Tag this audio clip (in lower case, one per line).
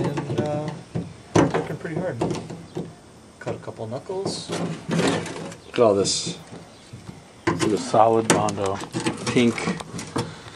speech